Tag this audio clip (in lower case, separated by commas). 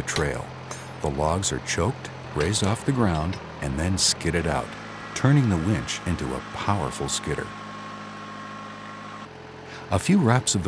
vehicle, speech